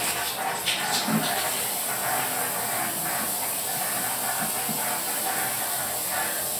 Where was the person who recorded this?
in a restroom